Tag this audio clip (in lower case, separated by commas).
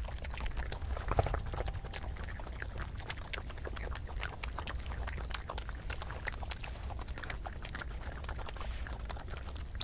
chatter